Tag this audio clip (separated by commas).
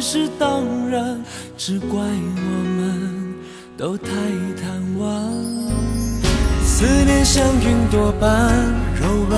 Music